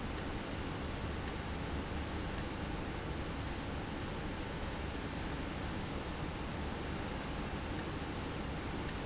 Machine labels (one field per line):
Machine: valve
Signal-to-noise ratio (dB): -6 dB